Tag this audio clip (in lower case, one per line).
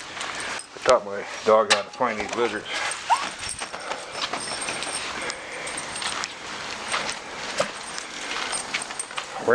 speech